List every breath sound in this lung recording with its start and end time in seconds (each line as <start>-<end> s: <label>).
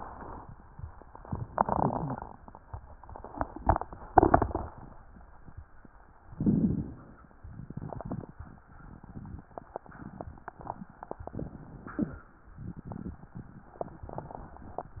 1.46-2.33 s: inhalation
2.00-2.18 s: wheeze
6.28-7.38 s: inhalation
7.41-8.63 s: exhalation
7.41-8.63 s: crackles